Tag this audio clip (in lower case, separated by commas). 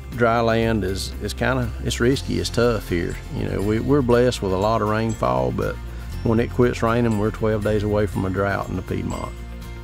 music, speech